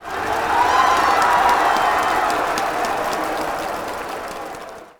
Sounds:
crowd
human group actions

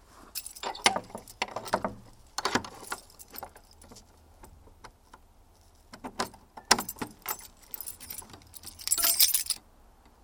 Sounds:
keys jangling
home sounds

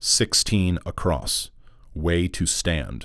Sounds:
human voice
man speaking
speech

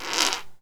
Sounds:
fart

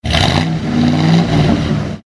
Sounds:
vroom
engine

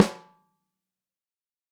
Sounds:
music
musical instrument
snare drum
percussion
drum

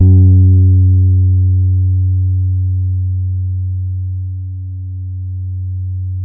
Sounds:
music
bass guitar
plucked string instrument
musical instrument
guitar

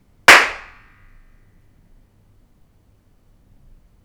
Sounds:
clapping
hands

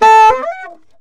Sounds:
musical instrument
music
wind instrument

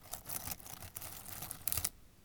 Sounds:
crackle

